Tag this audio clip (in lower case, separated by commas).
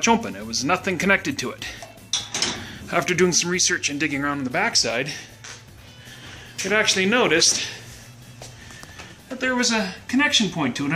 speech, inside a small room, music